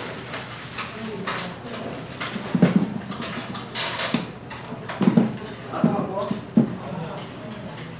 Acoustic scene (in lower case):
restaurant